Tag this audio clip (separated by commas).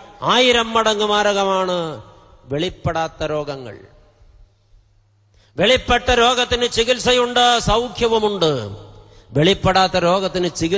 Narration, Male speech, Speech